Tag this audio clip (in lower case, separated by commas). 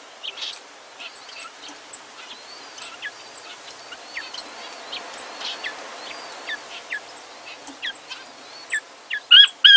inside a small room, bird, tweeting, tweet